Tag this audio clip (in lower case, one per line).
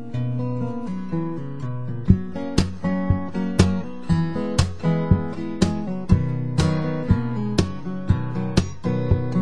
plucked string instrument
musical instrument
strum
acoustic guitar
music
guitar